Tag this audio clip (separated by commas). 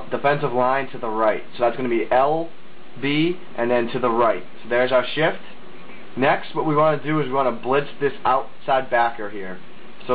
Speech